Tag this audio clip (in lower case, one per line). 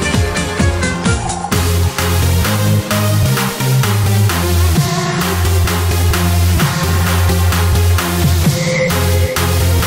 music
electronic dance music